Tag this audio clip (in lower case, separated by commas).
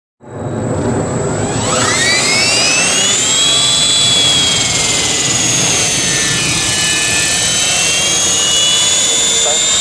outside, rural or natural, speech